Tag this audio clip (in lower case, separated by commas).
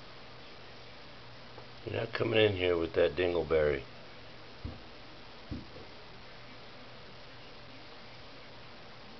speech